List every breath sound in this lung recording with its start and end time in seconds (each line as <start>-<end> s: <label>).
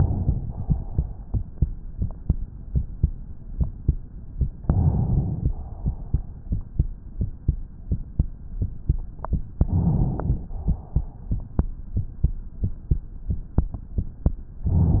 0.30-1.29 s: exhalation
4.67-5.50 s: inhalation
5.50-6.36 s: exhalation
9.60-10.46 s: inhalation
10.46-11.35 s: exhalation